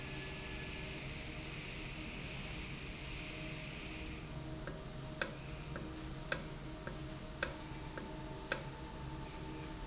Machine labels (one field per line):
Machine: valve